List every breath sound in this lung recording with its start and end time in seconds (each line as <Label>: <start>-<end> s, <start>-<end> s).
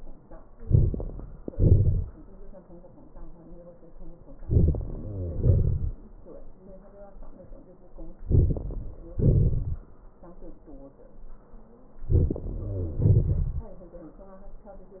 Inhalation: 0.55-1.23 s, 4.42-4.92 s, 8.31-8.91 s, 12.09-12.58 s
Exhalation: 1.50-2.08 s, 5.36-5.98 s, 9.15-9.83 s, 13.05-13.71 s
Wheeze: 4.81-5.44 s, 12.41-13.04 s